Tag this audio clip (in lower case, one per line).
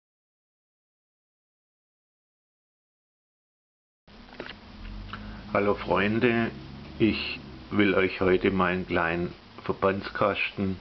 speech